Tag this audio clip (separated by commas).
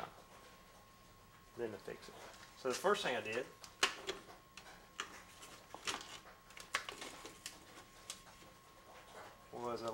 Speech